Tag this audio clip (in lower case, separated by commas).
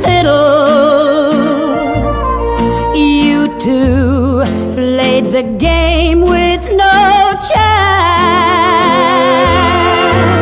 musical instrument, music, violin